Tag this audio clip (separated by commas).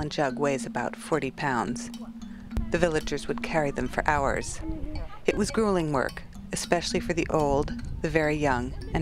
Music, Speech